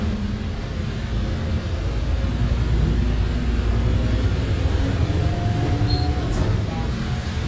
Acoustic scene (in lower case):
bus